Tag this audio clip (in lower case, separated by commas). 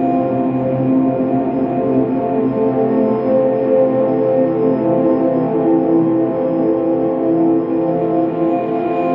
music, ambient music